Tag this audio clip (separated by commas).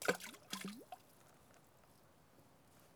Liquid, Water, splatter